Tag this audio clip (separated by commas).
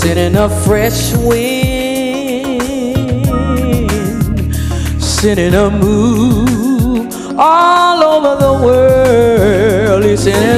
Music, Female singing